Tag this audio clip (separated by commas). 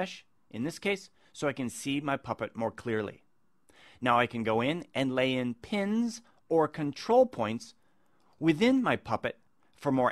Speech, monologue